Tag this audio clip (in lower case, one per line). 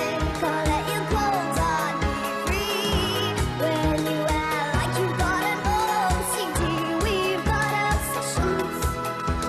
music